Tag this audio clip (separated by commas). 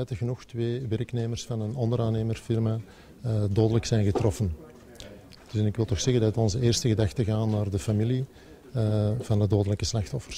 Speech